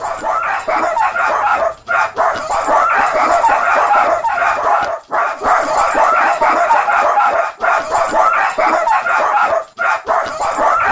Small dogs barking with their tags ringing